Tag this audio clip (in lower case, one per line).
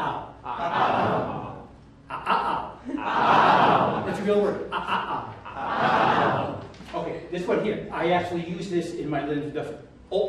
speech